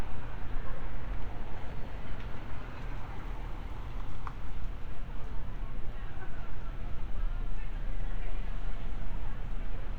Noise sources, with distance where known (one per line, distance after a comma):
person or small group talking, far